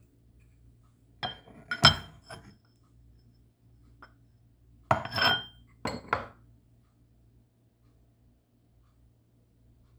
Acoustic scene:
kitchen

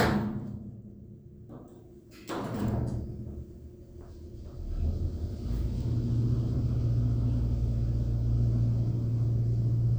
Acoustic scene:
elevator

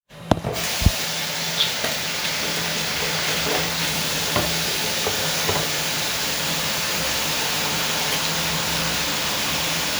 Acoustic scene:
restroom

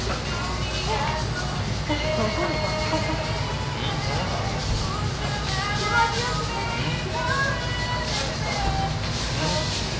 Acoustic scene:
restaurant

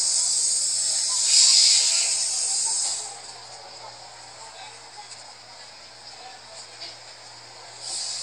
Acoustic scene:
street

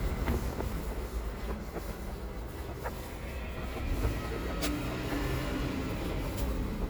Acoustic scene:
residential area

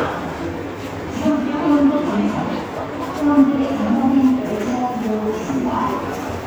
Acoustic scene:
subway station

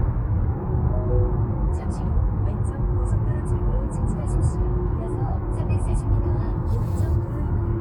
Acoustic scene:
car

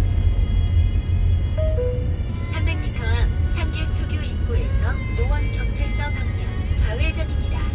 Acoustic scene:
car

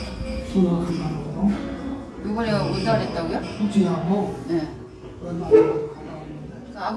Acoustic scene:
restaurant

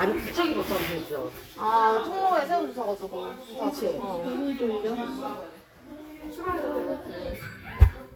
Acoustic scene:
crowded indoor space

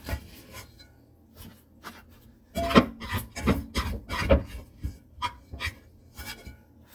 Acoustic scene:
kitchen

